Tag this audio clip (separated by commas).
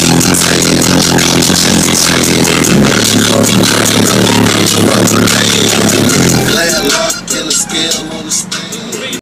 Music